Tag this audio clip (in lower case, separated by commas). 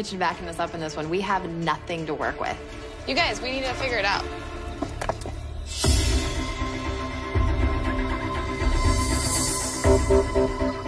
speech, music, electronica